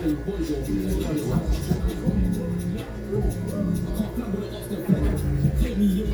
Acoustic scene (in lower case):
restaurant